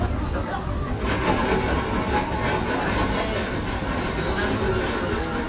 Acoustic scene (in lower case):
cafe